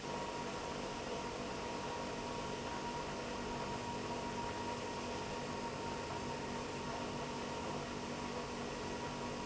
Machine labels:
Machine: pump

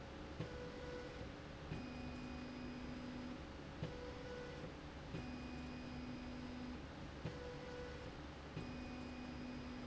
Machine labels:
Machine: slide rail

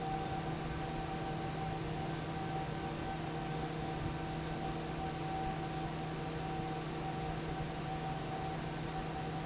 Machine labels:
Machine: fan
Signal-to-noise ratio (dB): -6 dB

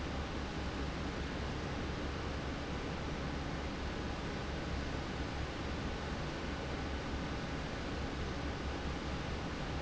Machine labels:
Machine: fan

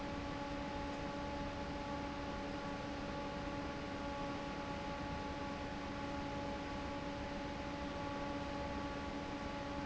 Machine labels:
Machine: fan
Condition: normal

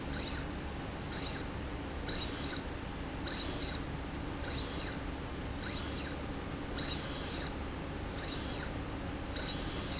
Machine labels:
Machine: slide rail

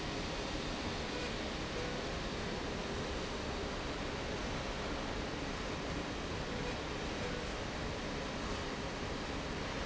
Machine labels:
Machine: slide rail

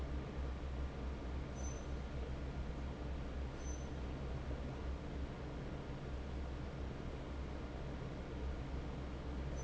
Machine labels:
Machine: fan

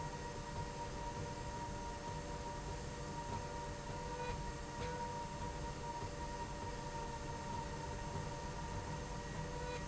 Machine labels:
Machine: slide rail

